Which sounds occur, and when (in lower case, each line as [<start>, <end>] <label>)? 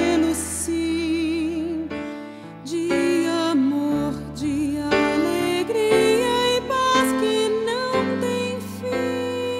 [0.00, 1.78] female singing
[0.00, 9.55] music
[1.91, 2.47] breathing
[2.60, 4.18] female singing
[4.32, 9.55] female singing